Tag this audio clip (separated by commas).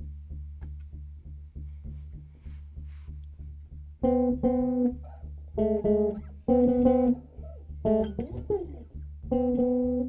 Guitar, Bass guitar, Music, Plucked string instrument, Electronic tuner, Musical instrument